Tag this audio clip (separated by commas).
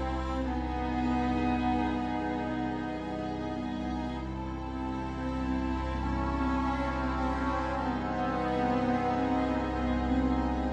Music